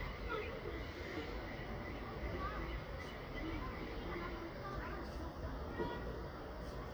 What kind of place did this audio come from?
residential area